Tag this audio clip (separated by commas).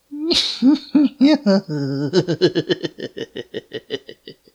Human voice, Laughter